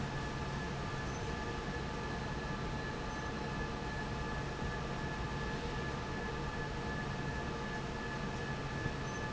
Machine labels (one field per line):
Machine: fan